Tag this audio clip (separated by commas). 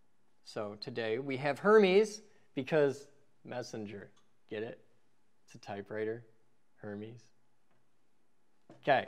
Speech